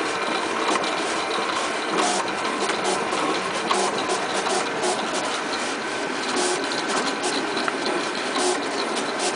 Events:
0.0s-9.3s: printer
0.6s-0.8s: generic impact sounds
2.6s-2.8s: generic impact sounds
3.6s-3.8s: generic impact sounds
6.7s-6.9s: generic impact sounds
7.5s-7.8s: generic impact sounds

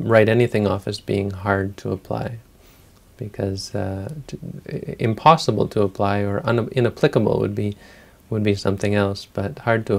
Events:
0.0s-2.4s: man speaking
0.0s-9.9s: background noise
2.5s-3.1s: breathing
3.1s-7.7s: man speaking
7.8s-8.2s: breathing
8.3s-9.9s: man speaking

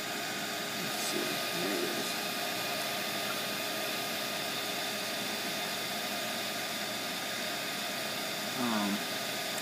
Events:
0.0s-9.6s: mechanisms
0.7s-1.3s: man speaking
1.5s-1.9s: man speaking
8.5s-9.0s: human voice

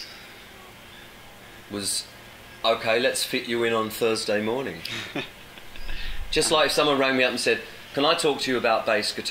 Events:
0.0s-9.3s: mechanisms
1.6s-2.0s: man speaking
1.7s-9.3s: conversation
2.6s-4.8s: man speaking
4.7s-6.3s: laughter
4.8s-4.9s: tick
6.3s-7.7s: man speaking
7.9s-9.3s: man speaking

